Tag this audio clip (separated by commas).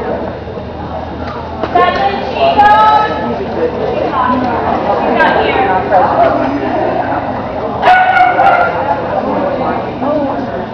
Bow-wow, Speech